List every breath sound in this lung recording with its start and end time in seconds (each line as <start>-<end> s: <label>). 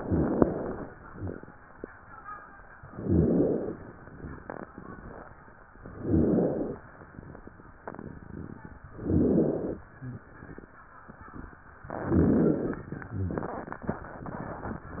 0.00-0.88 s: inhalation
0.00-0.88 s: rhonchi
2.90-3.78 s: inhalation
2.90-3.78 s: rhonchi
5.90-6.79 s: inhalation
5.90-6.79 s: rhonchi
8.96-9.85 s: inhalation
8.96-9.85 s: rhonchi
11.99-12.88 s: inhalation
11.99-12.88 s: rhonchi